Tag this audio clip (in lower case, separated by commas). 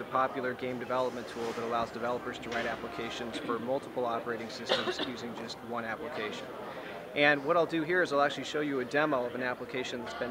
speech